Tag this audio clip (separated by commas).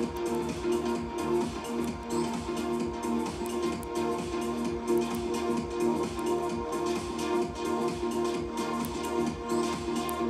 Music